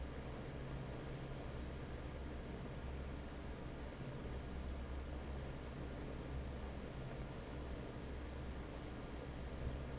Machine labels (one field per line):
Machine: fan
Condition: normal